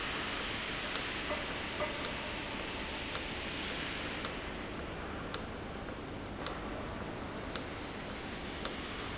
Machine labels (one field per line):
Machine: valve